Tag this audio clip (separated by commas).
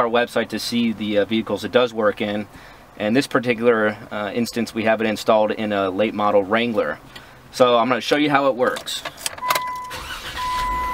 Speech